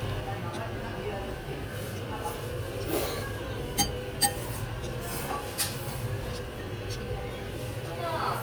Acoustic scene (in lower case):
restaurant